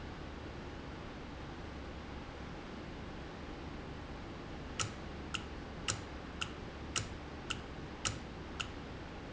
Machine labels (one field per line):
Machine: valve